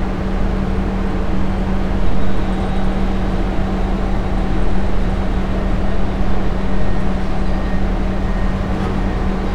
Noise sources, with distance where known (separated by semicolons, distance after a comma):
large-sounding engine, near